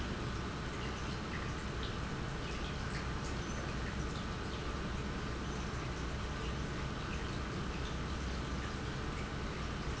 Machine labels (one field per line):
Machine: pump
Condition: normal